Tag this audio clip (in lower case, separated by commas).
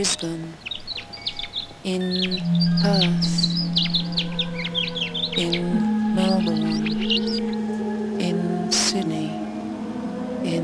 music, outside, rural or natural, speech